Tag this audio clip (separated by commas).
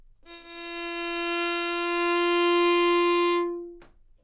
Musical instrument, Music, Bowed string instrument